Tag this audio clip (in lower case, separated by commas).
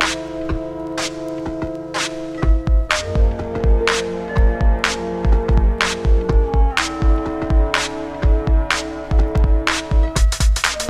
electronic music, music, ambient music